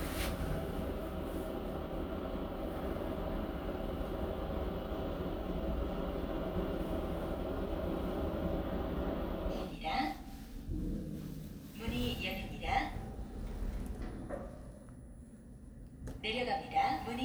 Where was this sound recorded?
in an elevator